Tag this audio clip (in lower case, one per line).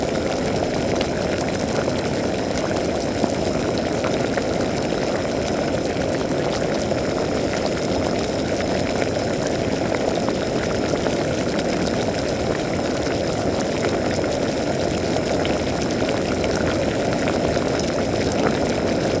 liquid
boiling